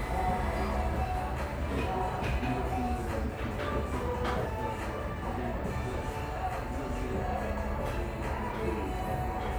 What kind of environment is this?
cafe